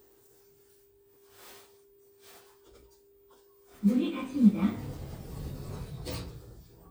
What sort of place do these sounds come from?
elevator